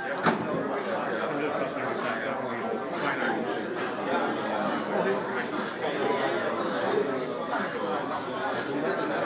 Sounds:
speech

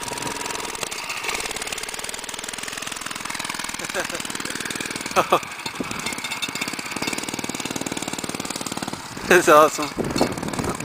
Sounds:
speech, vehicle, motorcycle, outside, rural or natural

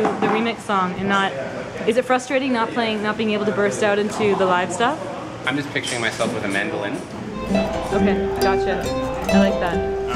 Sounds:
music, speech

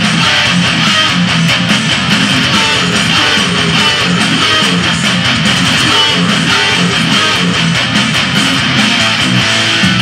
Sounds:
music

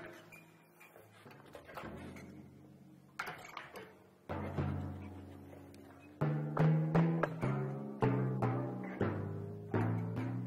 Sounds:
playing timpani

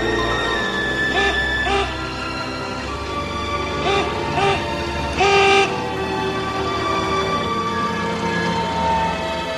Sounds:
music

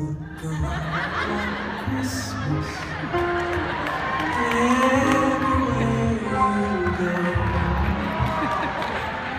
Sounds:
music

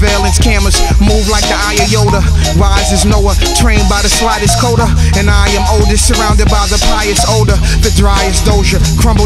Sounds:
music

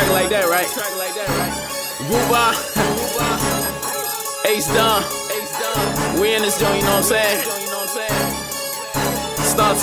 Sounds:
funk, background music, music

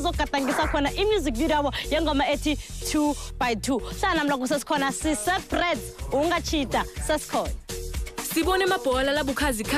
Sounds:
speech, music

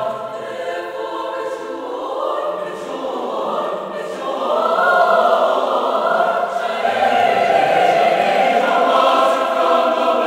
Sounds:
music

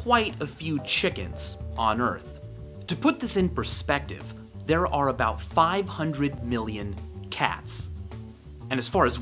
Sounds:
speech

